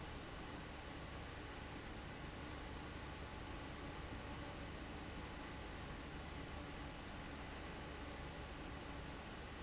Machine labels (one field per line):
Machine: fan